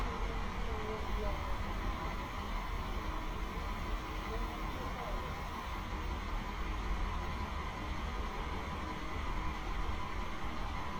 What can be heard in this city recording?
person or small group talking